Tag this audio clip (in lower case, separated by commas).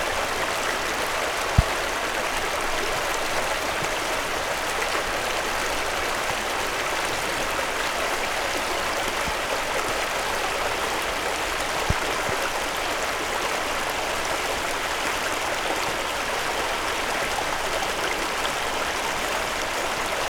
stream, water